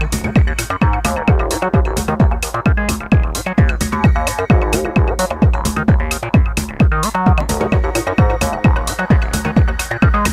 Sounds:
Techno, Music, Electronic music

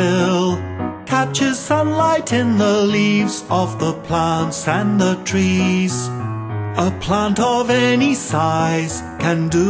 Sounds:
Music

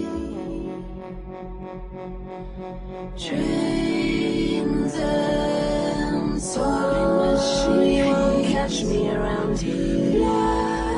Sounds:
Music

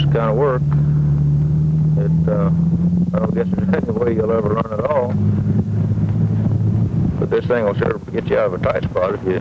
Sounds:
Vehicle, Speech

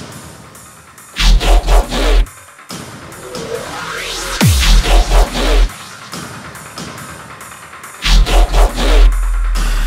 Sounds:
Music

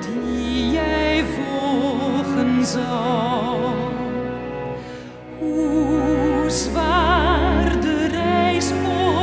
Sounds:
Music

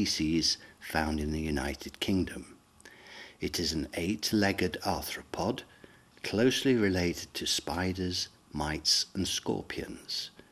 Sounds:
Speech

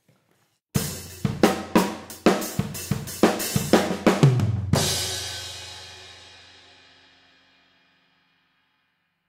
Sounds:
Speech, Music, Bass drum, Snare drum, Hi-hat, Cymbal, Musical instrument, Drum, Drum kit, Percussion

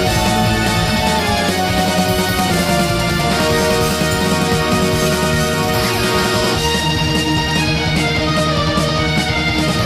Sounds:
Music

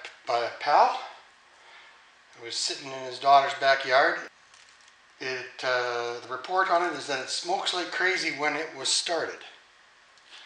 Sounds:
Speech

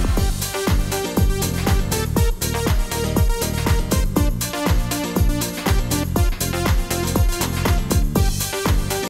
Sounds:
Music

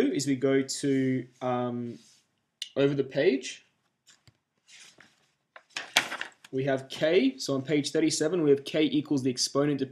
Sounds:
Speech

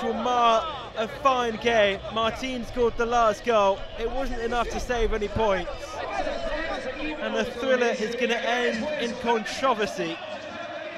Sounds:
Speech

